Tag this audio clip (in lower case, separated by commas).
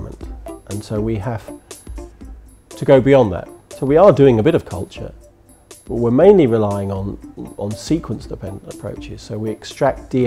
music, speech